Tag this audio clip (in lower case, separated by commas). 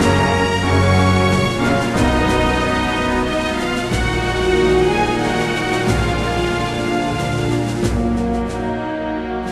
music